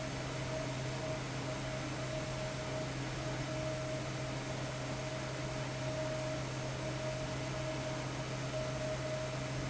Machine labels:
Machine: fan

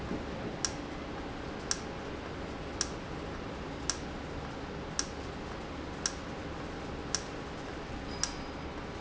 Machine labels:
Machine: valve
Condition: normal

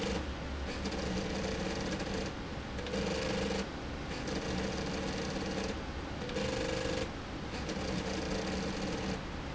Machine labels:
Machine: slide rail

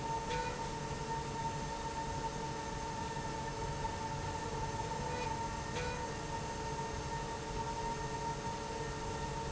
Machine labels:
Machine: slide rail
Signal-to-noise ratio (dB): -6 dB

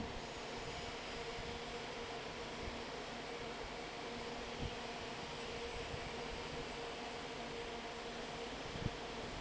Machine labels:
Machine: fan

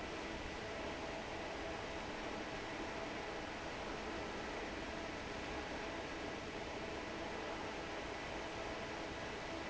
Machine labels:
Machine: fan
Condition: normal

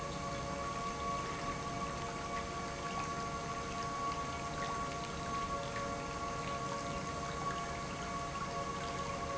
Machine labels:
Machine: pump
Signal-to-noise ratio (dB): -6 dB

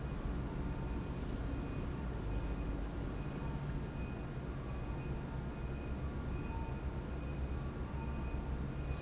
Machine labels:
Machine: pump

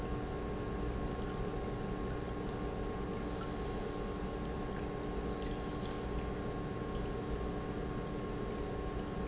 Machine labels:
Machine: pump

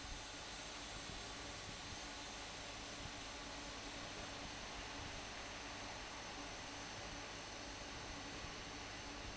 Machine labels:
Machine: fan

